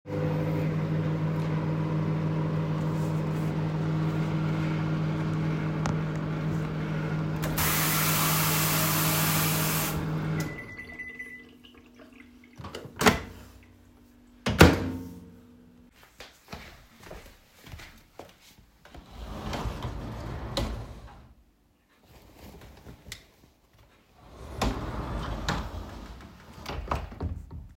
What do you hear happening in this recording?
Microwave on, turned on the tap for the water to run, microwave bell rings, I open and close the microwave , walk towards the drawer and open it